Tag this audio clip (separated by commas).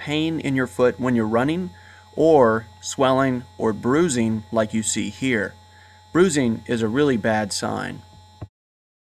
Speech